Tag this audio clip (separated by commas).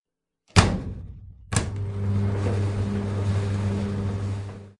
Engine